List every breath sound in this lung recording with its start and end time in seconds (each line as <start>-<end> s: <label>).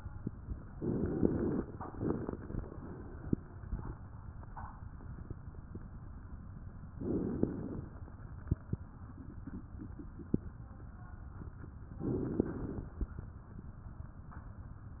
0.78-1.63 s: inhalation
0.78-1.63 s: crackles
6.98-7.84 s: inhalation
6.98-7.84 s: crackles
12.05-12.90 s: inhalation
12.05-12.90 s: crackles